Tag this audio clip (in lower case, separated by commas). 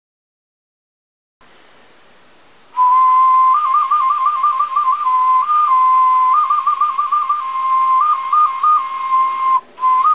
whistle